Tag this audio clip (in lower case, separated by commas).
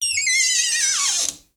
domestic sounds, door